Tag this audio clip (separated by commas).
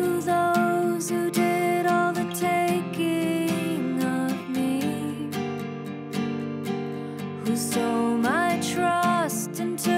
Music